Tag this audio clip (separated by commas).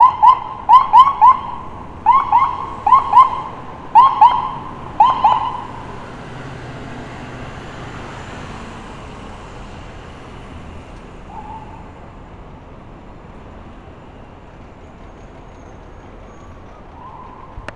Siren, Vehicle, Alarm, Motor vehicle (road)